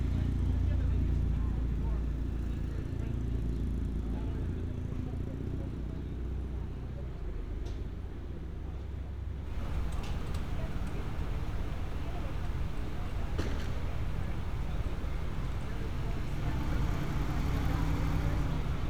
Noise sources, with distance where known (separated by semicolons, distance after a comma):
engine of unclear size; person or small group talking, far